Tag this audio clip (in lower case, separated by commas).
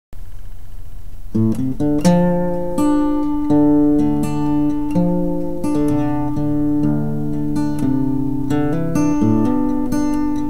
country, musical instrument, music, plucked string instrument, guitar